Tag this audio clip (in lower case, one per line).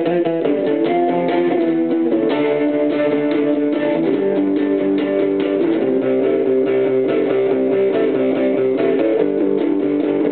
music
plucked string instrument
strum
musical instrument
guitar